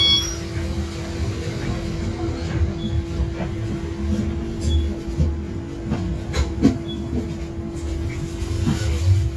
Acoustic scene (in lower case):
bus